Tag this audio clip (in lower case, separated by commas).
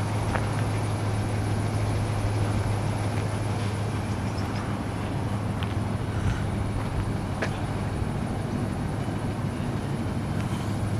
vehicle